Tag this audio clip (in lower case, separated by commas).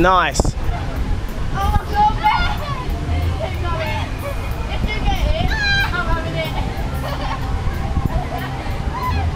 speech, outside, urban or man-made